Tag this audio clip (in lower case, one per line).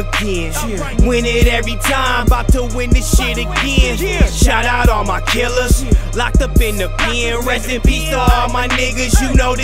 music